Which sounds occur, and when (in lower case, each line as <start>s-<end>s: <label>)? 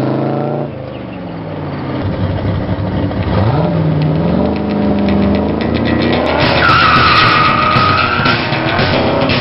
0.0s-9.4s: medium engine (mid frequency)
0.0s-9.4s: wind
0.9s-2.1s: bird song
4.0s-9.4s: music
6.6s-8.4s: tire squeal